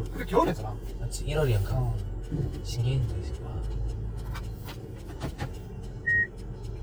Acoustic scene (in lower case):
car